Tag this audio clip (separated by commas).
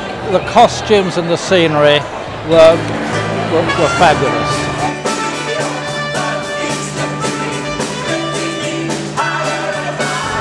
Speech, Music